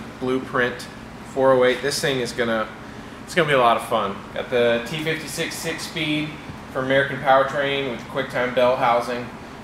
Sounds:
speech

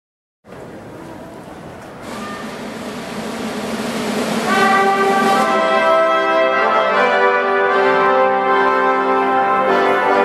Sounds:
classical music
musical instrument
music

